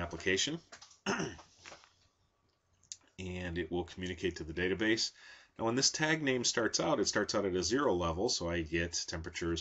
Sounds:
Speech

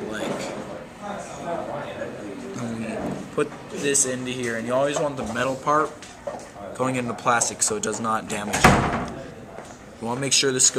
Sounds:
Speech, Wood

